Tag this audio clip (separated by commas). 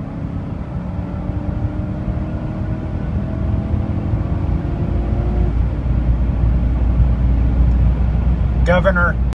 Speech